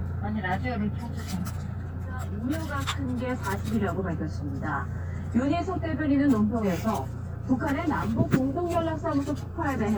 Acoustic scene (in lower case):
car